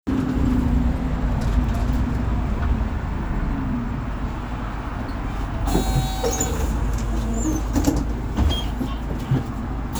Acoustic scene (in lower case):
bus